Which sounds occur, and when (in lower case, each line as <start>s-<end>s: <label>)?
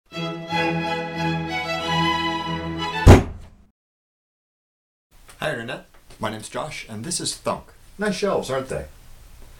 0.1s-3.0s: music
3.0s-3.5s: thunk
5.1s-9.5s: background noise
8.0s-8.9s: male speech
9.4s-9.4s: tap